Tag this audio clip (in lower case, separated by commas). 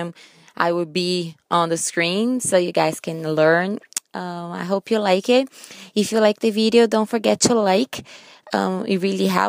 speech